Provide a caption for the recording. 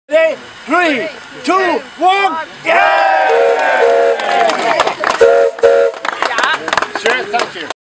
An adult male speaks, a crowd applauds, and a small train whistle blows